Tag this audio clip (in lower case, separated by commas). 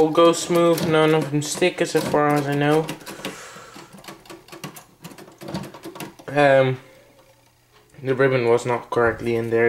typewriter, speech